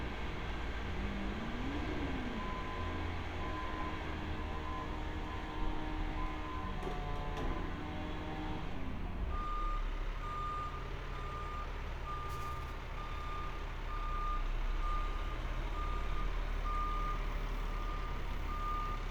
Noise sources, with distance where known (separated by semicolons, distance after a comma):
large-sounding engine; reverse beeper